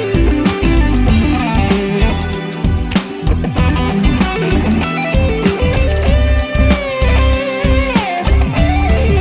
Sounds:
strum, electric guitar, playing bass guitar, plucked string instrument, music, musical instrument, bass guitar, guitar, acoustic guitar

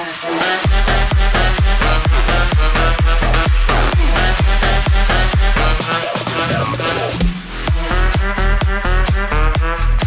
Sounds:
music, drum and bass

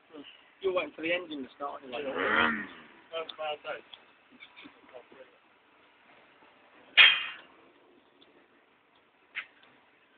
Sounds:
speech

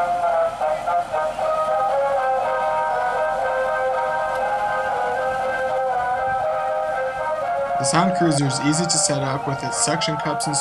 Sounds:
speech, music

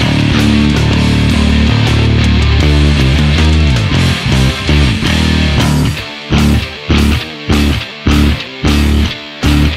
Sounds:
playing bass guitar

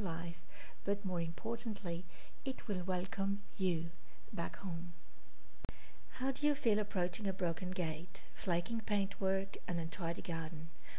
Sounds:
speech

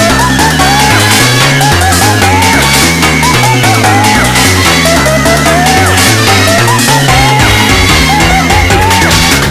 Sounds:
music

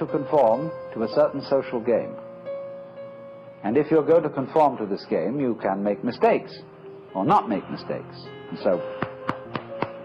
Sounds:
speech, music

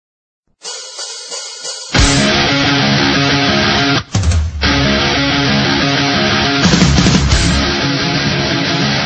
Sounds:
drum, percussion, rimshot, drum kit, bass drum, drum roll

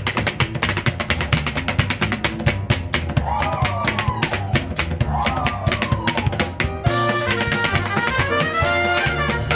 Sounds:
music

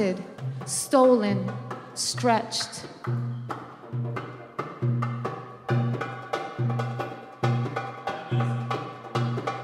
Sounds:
speech, percussion, wood block, music

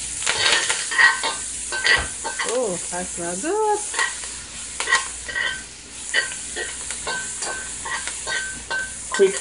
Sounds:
sizzle, frying (food), stir

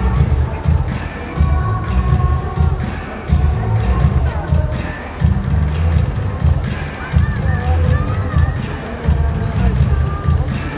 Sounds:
music, speech

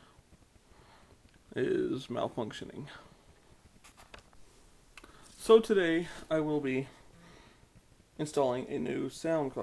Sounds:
speech

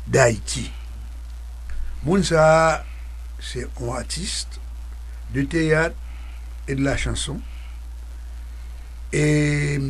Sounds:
speech

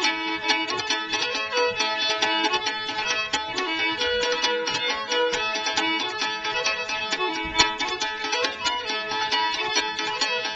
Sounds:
musical instrument, music, fiddle

